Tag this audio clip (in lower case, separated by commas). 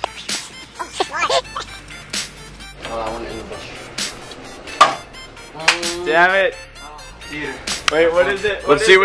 music, speech, outside, rural or natural